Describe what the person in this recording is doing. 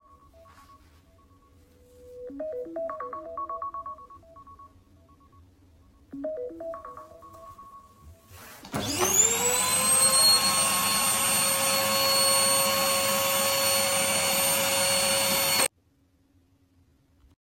First then phone rang, then I took the recording device over to the vacuum cleaner and turned it on.